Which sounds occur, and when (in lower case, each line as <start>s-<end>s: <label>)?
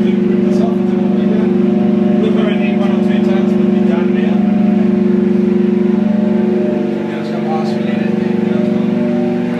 0.0s-9.5s: medium engine (mid frequency)
0.4s-9.5s: conversation
0.5s-1.4s: man speaking
2.2s-4.4s: man speaking
7.0s-9.0s: man speaking